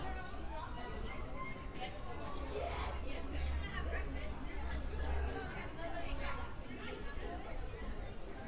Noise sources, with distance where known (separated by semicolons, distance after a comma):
person or small group talking, near